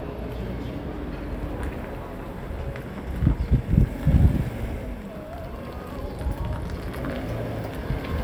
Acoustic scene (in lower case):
street